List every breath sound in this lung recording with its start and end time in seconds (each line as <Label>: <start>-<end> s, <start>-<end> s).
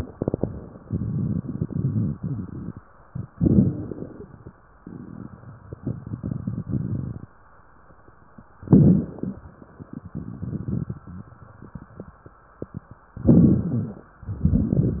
Inhalation: 0.00-0.81 s, 3.25-4.55 s, 8.63-9.41 s, 13.20-14.11 s
Exhalation: 0.84-2.70 s, 4.78-7.32 s, 9.45-11.31 s, 14.23-15.00 s
Crackles: 0.00-0.81 s, 0.85-2.73 s, 3.27-4.55 s, 4.74-7.30 s, 8.60-9.41 s, 9.47-11.27 s, 13.22-14.06 s, 14.25-15.00 s